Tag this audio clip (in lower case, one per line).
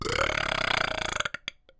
burping